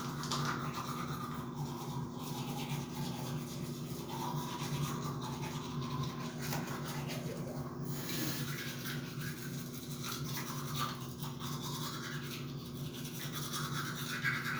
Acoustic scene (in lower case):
restroom